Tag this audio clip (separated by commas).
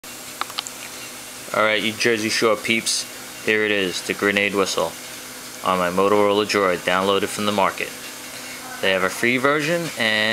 Speech